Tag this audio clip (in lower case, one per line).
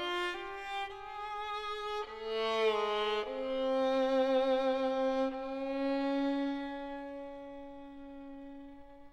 music
fiddle
bowed string instrument